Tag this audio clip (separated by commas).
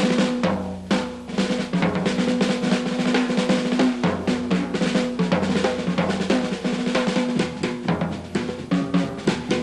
Percussion, playing snare drum, Drum, Snare drum, Bass drum, Rimshot, Drum roll